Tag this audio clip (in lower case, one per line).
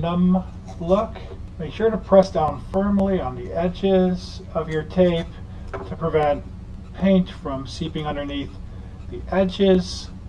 speech